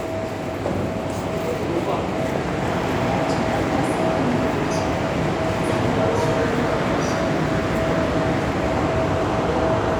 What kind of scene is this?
subway station